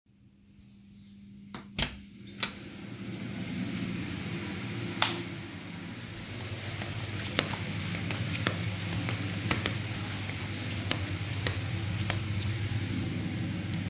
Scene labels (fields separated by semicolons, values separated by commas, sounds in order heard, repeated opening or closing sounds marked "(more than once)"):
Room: kitchen; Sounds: door, light switch, footsteps